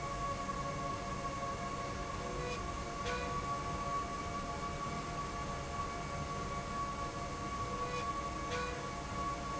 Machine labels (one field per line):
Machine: slide rail